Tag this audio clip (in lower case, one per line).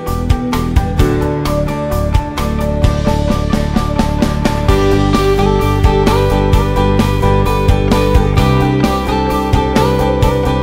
music